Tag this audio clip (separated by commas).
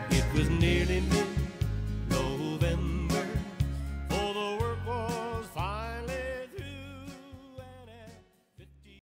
Singing, Music